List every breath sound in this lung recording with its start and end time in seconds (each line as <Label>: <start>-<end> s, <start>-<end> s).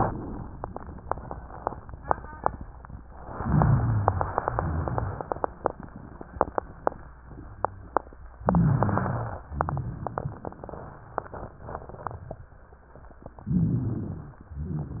Inhalation: 3.31-4.38 s, 8.41-9.38 s, 13.51-14.40 s
Exhalation: 4.46-5.52 s, 9.52-10.58 s, 14.64-15.00 s
Rhonchi: 3.31-4.38 s, 4.46-5.52 s, 8.41-9.38 s, 9.52-10.58 s, 13.51-14.40 s, 14.64-15.00 s